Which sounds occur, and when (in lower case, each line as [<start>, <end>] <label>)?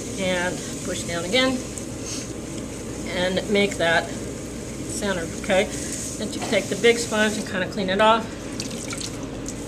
[0.00, 9.65] mechanisms
[0.10, 0.44] woman speaking
[0.77, 1.54] woman speaking
[1.92, 2.15] surface contact
[3.01, 3.95] woman speaking
[4.86, 5.19] woman speaking
[5.40, 5.61] woman speaking
[5.57, 6.05] surface contact
[6.14, 8.14] woman speaking
[6.25, 7.41] surface contact
[8.52, 9.15] trickle
[9.38, 9.47] trickle